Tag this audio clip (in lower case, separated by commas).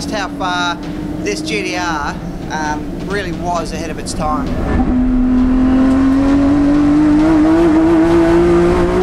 car, motor vehicle (road), vehicle, speech